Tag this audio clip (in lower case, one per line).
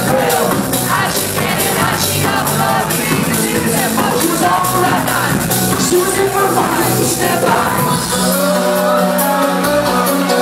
music